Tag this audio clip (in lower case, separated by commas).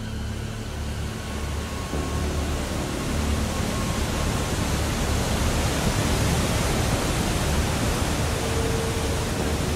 outside, rural or natural, pink noise